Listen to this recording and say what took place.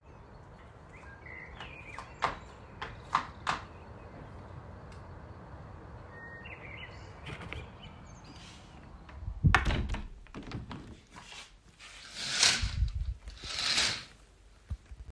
Birds were whistling outside. I walked toward the window and closed it. Then I closed the curtains.